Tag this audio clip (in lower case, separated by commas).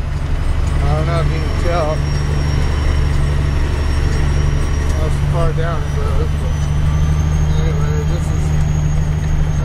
speech, vehicle